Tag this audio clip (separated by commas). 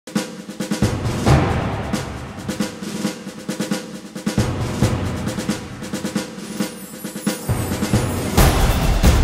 Drum, Rimshot, Bass drum, Percussion, Drum roll, Drum kit